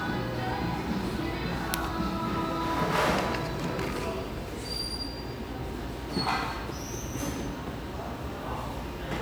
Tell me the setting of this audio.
cafe